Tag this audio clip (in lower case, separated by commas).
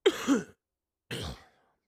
respiratory sounds, cough